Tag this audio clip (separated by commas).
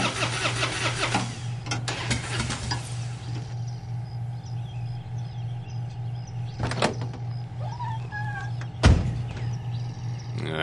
Vehicle, outside, rural or natural